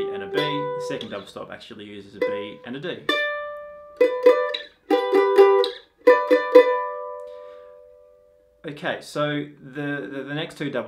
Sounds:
playing mandolin

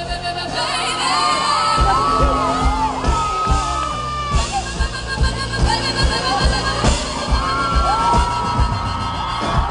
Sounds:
music
whoop

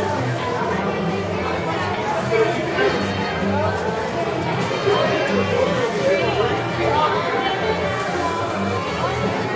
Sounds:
music
speech

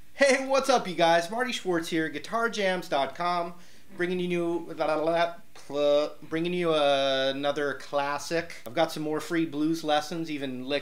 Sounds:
speech

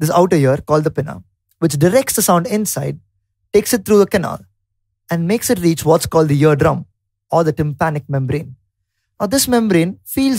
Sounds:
speech

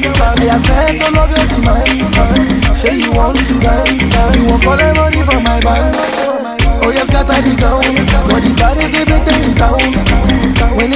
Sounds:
music
afrobeat

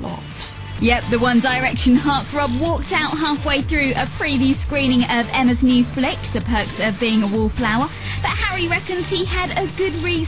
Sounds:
music
speech

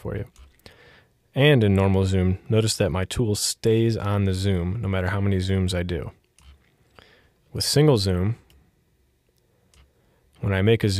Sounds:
speech

